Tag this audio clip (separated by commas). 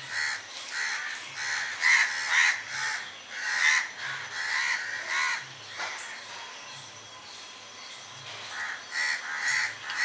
crow cawing